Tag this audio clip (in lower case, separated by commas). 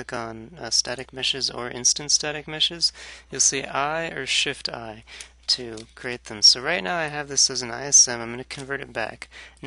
speech